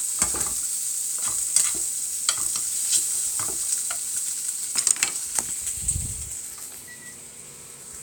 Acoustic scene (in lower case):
kitchen